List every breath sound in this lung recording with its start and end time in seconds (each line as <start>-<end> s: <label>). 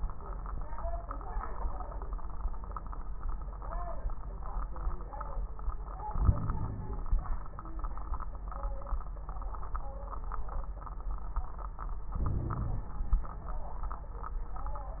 6.08-7.08 s: inhalation
6.08-7.08 s: crackles
12.14-12.97 s: inhalation
12.14-12.97 s: crackles